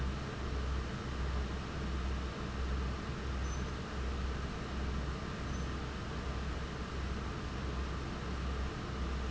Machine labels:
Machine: fan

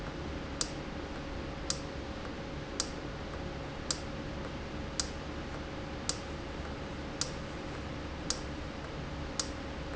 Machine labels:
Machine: valve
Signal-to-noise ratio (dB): -6 dB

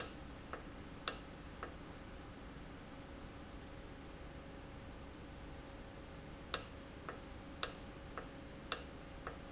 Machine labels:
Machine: valve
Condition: normal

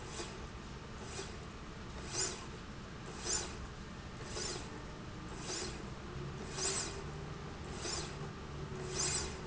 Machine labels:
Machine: slide rail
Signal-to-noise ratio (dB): 0 dB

